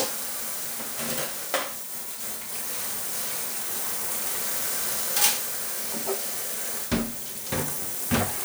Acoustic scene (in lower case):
kitchen